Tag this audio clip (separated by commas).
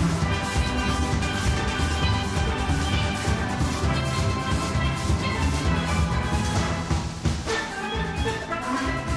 playing steelpan